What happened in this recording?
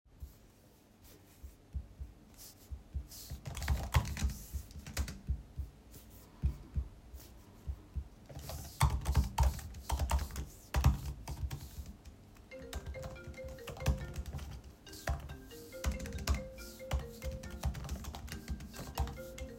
I was typing on my laptop keyboard when my phone started ringing in the background.